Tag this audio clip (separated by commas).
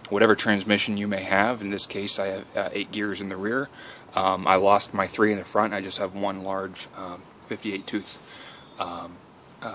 Speech